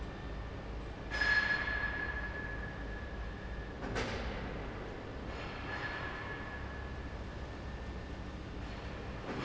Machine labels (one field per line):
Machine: fan